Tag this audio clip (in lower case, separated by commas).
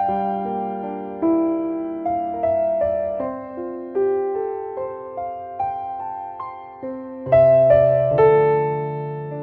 music